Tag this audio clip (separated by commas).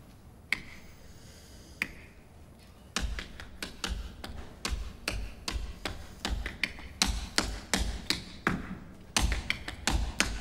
tap dancing